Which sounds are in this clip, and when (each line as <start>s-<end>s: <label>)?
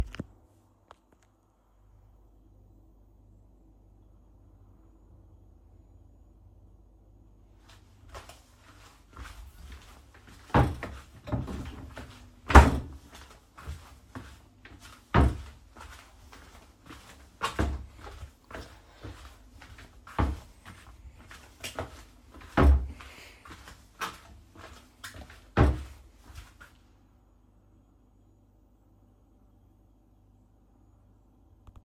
7.3s-27.0s: footsteps
10.0s-26.3s: wardrobe or drawer